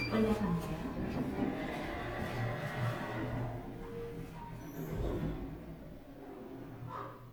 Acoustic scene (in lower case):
elevator